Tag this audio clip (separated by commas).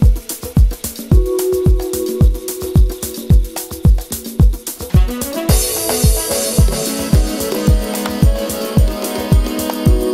Music